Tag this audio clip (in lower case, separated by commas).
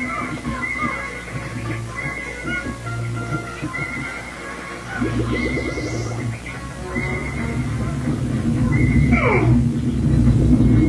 music